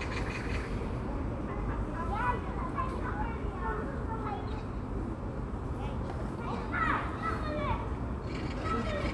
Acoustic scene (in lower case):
park